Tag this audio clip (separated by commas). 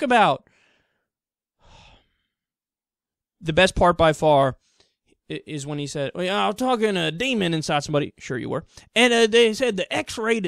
Speech